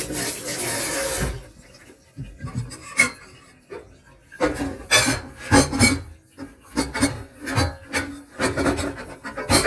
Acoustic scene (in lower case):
kitchen